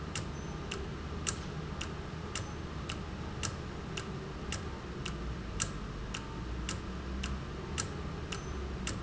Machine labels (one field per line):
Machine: valve